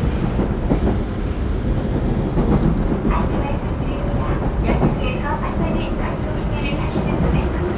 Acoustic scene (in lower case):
subway train